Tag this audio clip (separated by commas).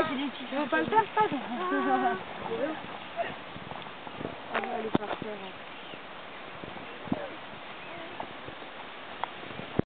Speech